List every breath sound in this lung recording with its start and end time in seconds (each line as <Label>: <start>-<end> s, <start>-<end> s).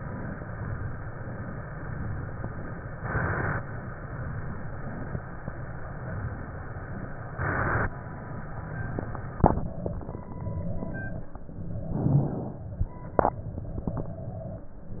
Inhalation: 11.84-12.63 s